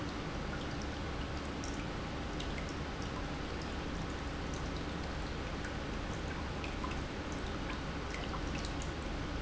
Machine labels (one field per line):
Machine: pump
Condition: normal